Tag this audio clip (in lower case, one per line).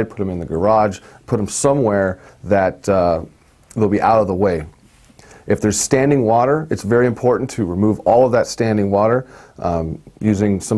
speech